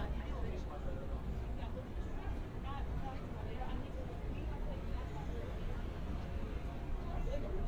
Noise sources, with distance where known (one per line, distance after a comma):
person or small group talking, near